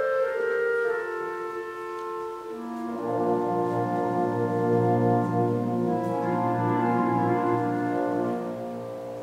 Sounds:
music, fiddle, musical instrument

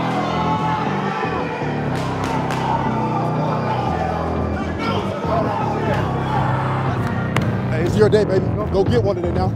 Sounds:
outside, urban or man-made, crowd, speech, music, sound effect, applause

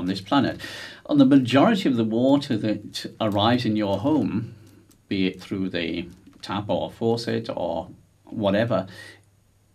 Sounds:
speech

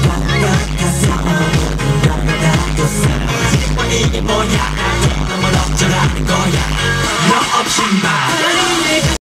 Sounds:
music

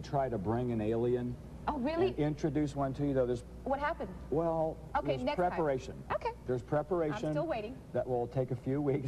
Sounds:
speech

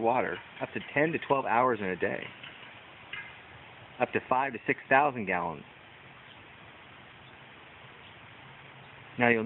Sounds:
speech

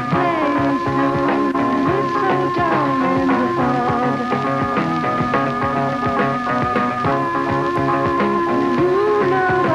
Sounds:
music

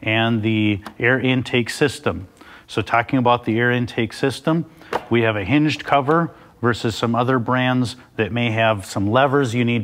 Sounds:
speech

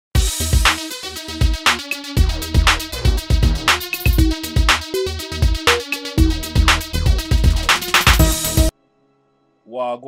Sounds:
music, drum machine

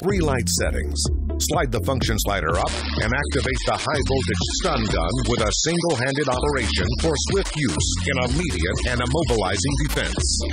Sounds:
speech, music

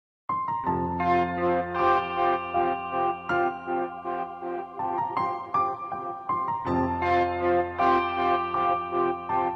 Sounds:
music

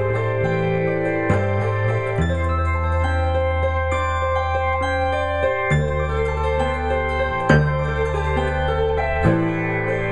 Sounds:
music, musical instrument, guitar, electric guitar, plucked string instrument, strum

